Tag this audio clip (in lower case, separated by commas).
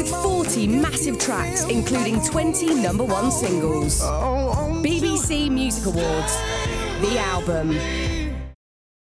music, speech